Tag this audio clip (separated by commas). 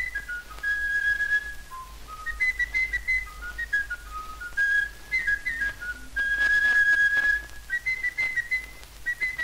inside a small room